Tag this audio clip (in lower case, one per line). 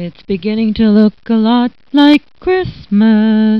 human voice
singing